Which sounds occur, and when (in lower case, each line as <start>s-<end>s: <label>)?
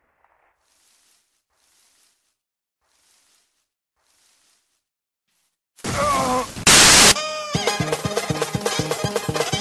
0.0s-2.4s: rustle
2.8s-3.7s: rustle
3.9s-4.9s: rustle
5.3s-5.6s: rustle
5.8s-6.5s: human sounds
6.6s-7.1s: noise
7.1s-9.6s: music